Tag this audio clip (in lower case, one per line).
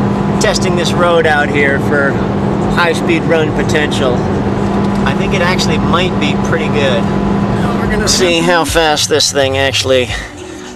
vehicle
car
speech